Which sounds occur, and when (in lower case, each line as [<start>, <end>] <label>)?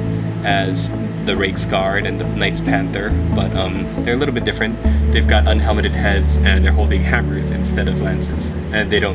[0.01, 9.14] music
[0.36, 0.92] male speech
[1.20, 3.10] male speech
[3.24, 3.75] male speech
[3.92, 4.65] male speech
[5.07, 8.52] male speech
[8.72, 9.14] male speech